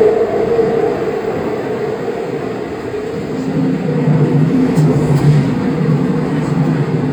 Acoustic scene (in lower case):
subway train